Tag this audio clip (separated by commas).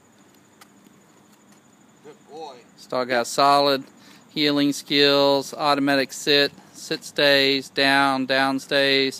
Speech